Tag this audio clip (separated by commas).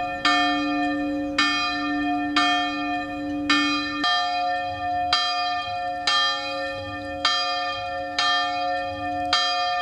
Bell